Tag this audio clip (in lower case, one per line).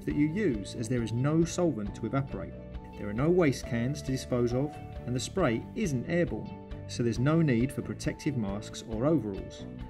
music
speech